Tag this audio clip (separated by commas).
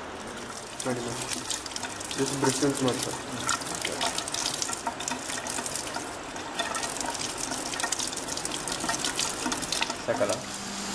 Speech